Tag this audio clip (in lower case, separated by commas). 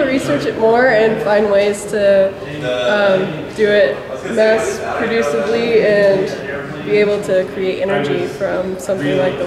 speech